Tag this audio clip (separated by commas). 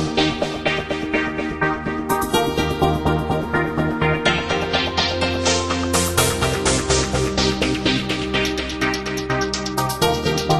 Music